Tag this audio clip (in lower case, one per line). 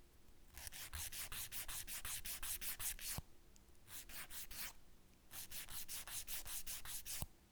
tools